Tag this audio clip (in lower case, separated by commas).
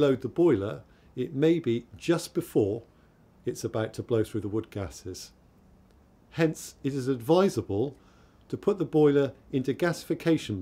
speech